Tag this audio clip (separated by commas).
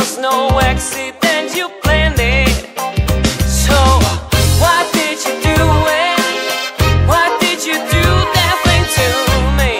Funk, Music